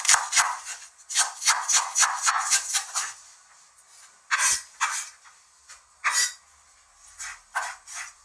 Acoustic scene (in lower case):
kitchen